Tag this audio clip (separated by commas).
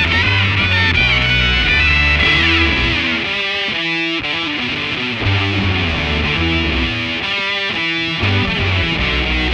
Music